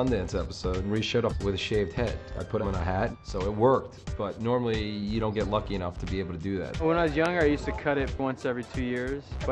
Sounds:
music
speech

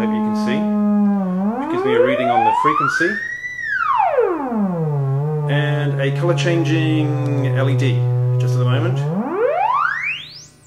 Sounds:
speech

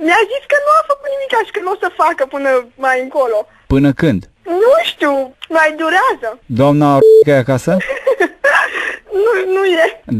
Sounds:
radio
speech

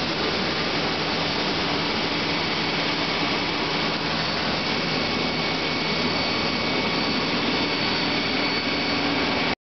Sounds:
pump (liquid)

